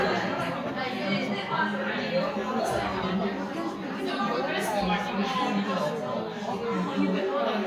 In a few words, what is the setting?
crowded indoor space